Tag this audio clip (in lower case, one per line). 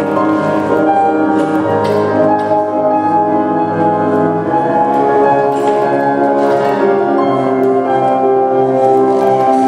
new-age music
music